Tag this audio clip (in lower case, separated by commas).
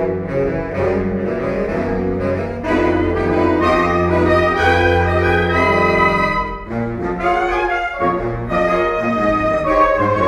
classical music, brass instrument, inside a large room or hall, orchestra, music, saxophone